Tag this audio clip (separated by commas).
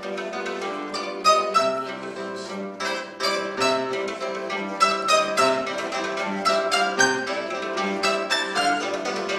Guitar, Music, Musical instrument, Mandolin